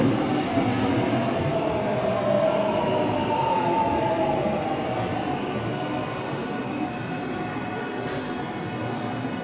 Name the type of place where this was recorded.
subway station